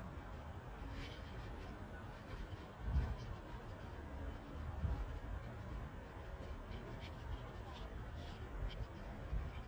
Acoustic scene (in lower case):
residential area